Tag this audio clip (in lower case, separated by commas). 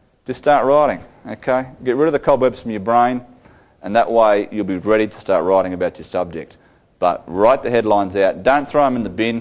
speech